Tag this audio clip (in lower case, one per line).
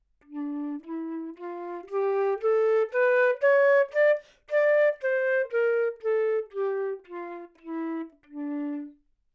musical instrument
music
woodwind instrument